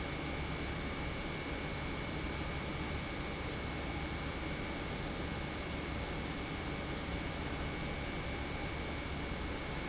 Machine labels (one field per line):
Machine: pump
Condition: normal